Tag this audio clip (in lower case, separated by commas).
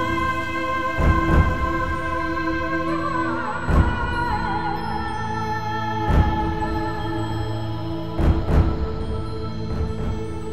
music, sad music